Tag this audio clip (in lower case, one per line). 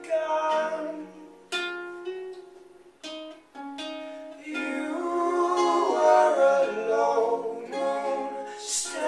pizzicato